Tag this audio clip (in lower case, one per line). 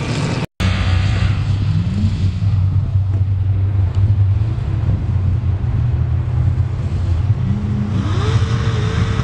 vehicle
outside, rural or natural
race car
car